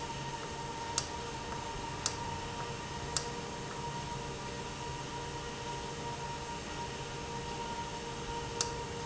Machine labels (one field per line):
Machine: valve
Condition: normal